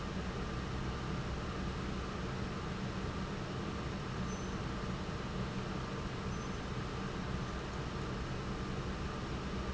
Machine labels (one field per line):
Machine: pump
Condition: normal